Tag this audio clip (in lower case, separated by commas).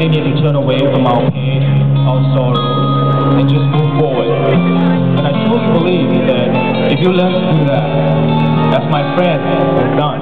music, speech